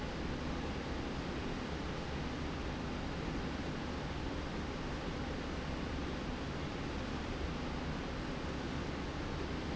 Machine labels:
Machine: slide rail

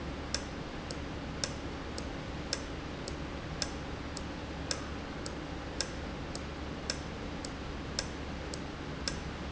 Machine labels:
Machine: valve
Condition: normal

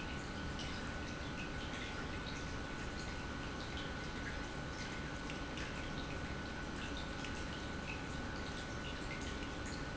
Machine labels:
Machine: pump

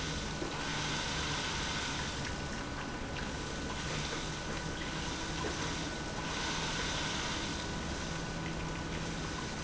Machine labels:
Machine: pump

